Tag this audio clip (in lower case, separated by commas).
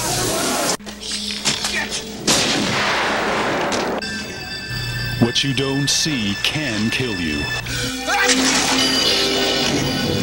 speech, music